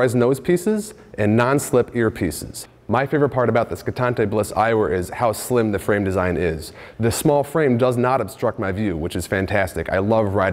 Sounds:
Speech

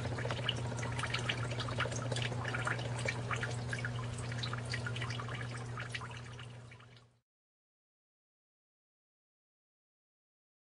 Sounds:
Silence

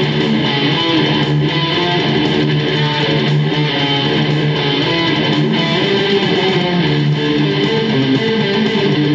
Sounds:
Tapping (guitar technique), Music

